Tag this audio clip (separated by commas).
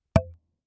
Tap